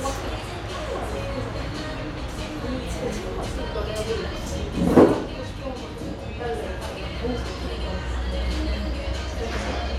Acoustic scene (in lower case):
cafe